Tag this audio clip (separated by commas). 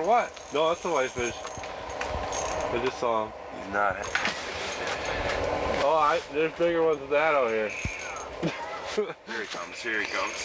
Speech